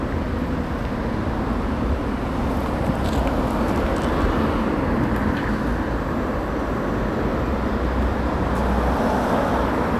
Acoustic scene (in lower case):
residential area